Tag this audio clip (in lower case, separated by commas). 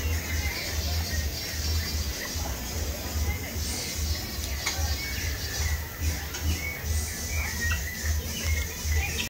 music, speech